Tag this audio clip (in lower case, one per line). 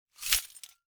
glass